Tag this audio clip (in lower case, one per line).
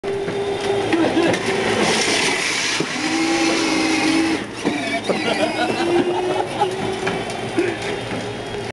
speech